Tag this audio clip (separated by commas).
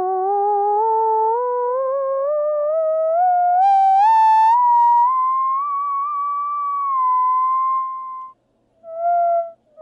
playing theremin